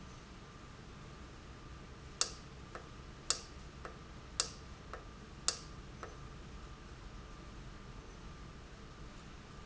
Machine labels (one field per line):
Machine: valve